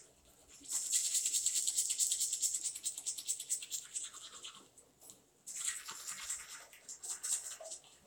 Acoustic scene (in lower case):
restroom